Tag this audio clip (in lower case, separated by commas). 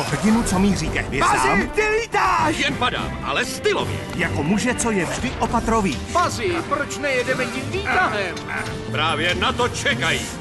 speech, music